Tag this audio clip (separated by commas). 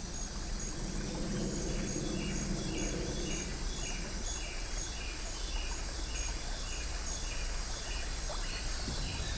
outside, rural or natural